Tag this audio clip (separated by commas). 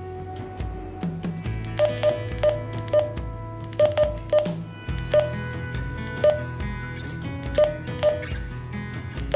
Music